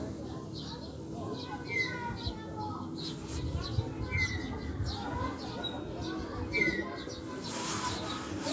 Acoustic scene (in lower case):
residential area